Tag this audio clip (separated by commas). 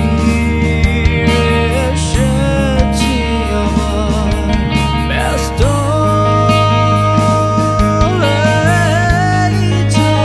Music